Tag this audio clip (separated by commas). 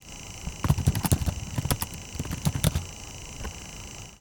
Domestic sounds, Typing